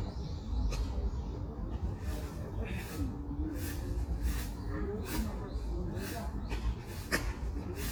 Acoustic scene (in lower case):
park